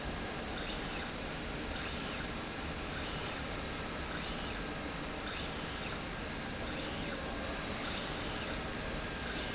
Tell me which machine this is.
slide rail